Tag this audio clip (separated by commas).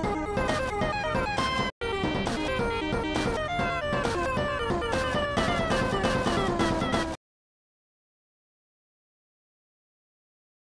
Music, Background music